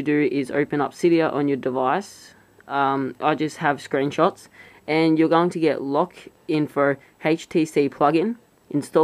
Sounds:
speech

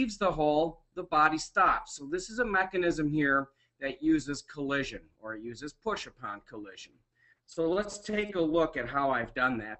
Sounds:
speech

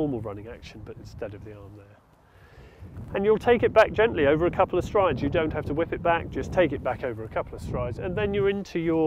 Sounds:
speech

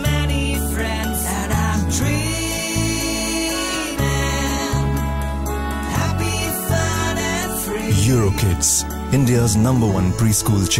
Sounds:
music
speech

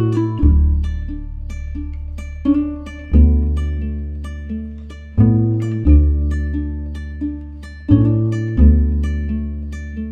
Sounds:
playing ukulele

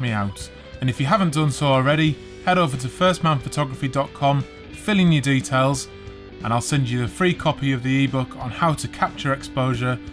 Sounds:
music
speech

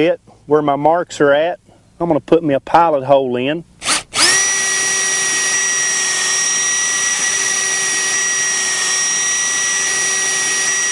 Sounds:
speech

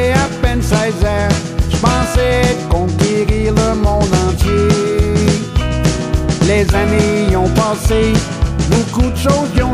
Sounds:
music

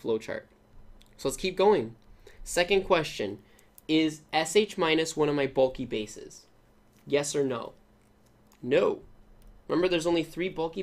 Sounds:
speech

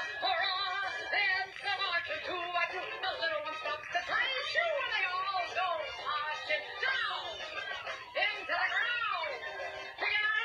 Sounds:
music

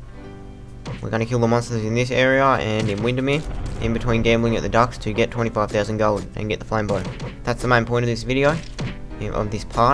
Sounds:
speech
music

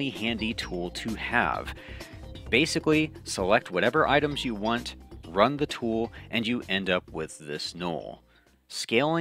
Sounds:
music
speech

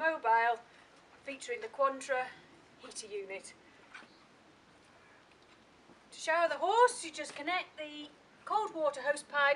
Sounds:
speech

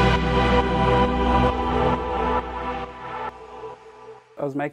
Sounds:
music
speech

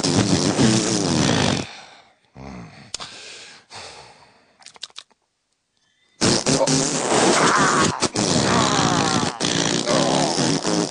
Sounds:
fart
people farting

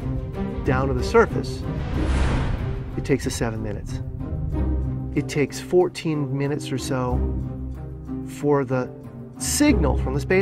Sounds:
speech
music

